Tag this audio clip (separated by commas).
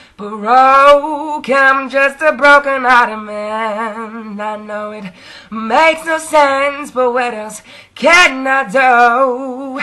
Male singing